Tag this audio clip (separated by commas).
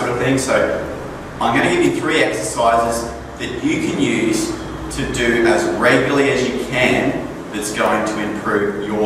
inside a large room or hall, Speech